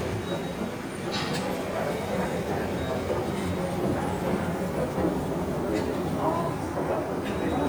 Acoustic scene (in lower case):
subway station